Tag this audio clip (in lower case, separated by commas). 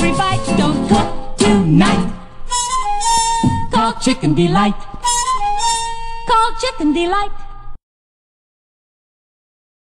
music